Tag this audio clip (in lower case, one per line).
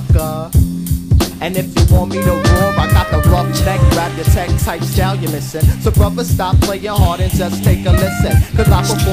music